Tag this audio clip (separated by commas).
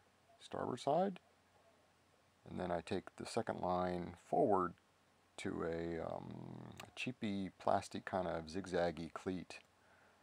Speech